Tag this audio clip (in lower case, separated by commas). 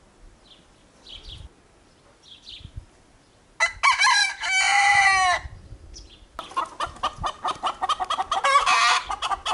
chicken crowing